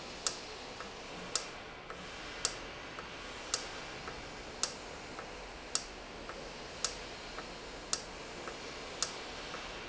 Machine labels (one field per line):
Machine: valve